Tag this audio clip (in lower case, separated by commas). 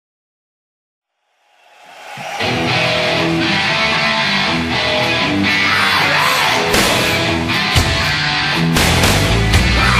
music